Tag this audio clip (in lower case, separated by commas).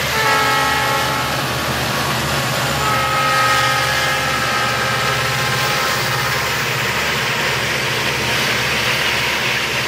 train, rail transport, vehicle, railroad car